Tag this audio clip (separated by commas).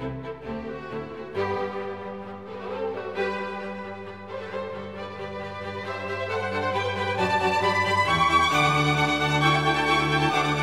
Music